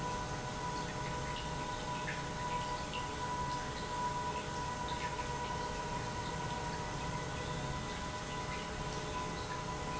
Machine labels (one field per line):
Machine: pump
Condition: normal